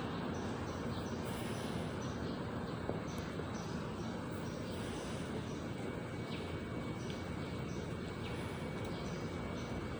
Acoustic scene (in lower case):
residential area